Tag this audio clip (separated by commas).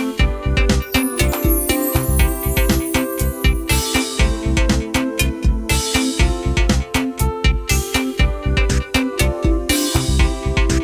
Music